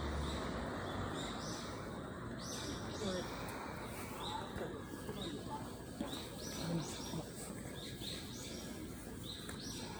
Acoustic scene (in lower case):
residential area